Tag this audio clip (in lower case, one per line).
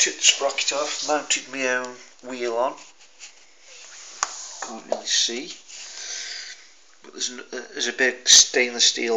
speech